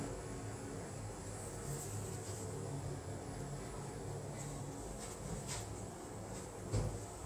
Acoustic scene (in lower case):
elevator